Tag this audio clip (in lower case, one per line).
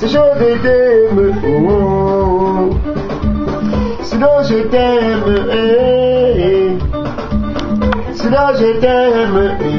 music
male singing